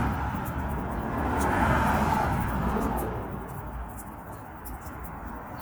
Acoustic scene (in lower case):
street